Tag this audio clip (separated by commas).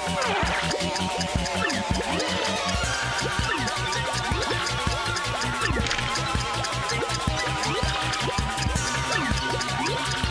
Music